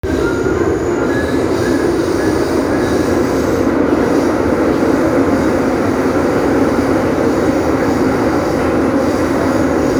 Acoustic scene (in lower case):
subway train